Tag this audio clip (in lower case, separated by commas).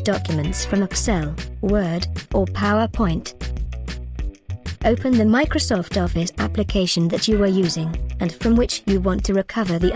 music, speech